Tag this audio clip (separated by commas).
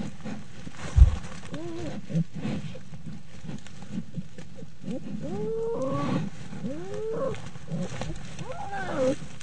Animal, Wild animals, Roar